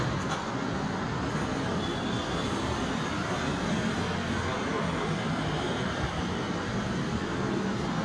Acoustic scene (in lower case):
street